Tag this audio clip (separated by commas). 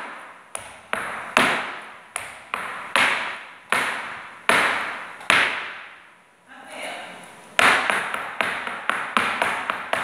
tap dancing